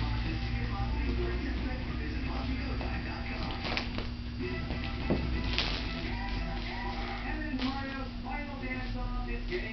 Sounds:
speech, music

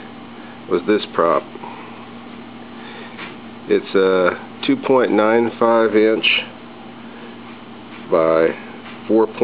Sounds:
speech

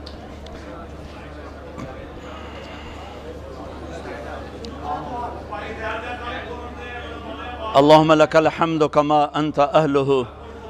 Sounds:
speech

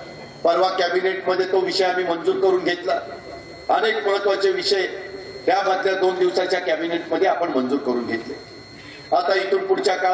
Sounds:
monologue, male speech, speech

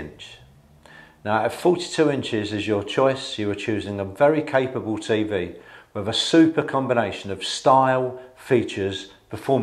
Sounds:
speech

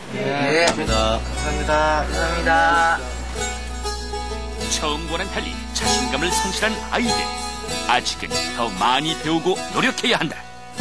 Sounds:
speech, music

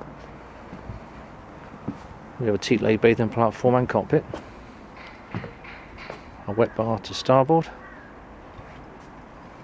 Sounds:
speech

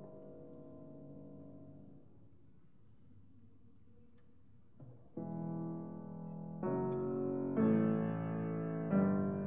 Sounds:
musical instrument, music

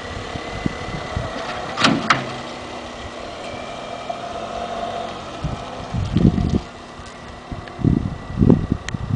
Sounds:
motor vehicle (road), car, vehicle

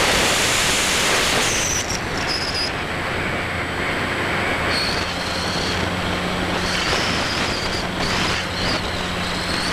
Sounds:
vehicle, aircraft, outside, rural or natural

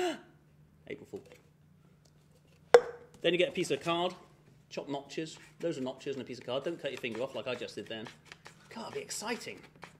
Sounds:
speech

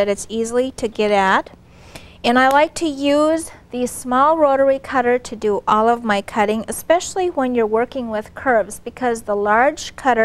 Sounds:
inside a small room, speech

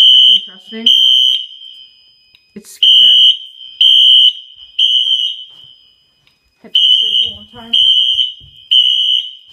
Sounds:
speech, fire alarm

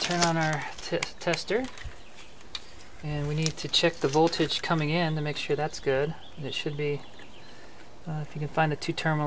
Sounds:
speech

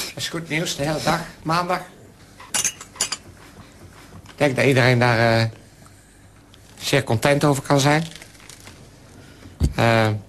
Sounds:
speech

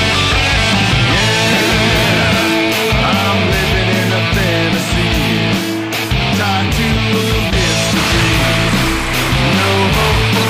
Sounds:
plucked string instrument, electric guitar, music, musical instrument, guitar

